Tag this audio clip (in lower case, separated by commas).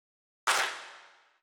clapping, hands